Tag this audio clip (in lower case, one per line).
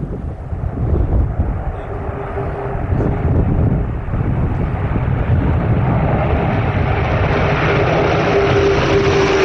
airplane flyby